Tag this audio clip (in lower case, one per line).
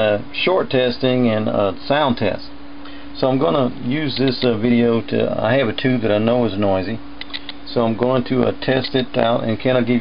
speech